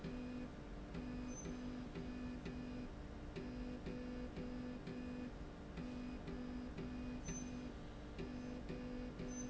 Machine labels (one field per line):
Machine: slide rail